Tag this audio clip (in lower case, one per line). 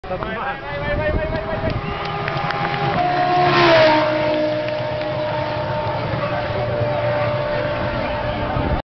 speech